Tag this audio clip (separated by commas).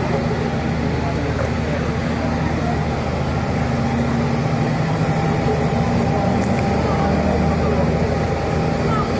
Speech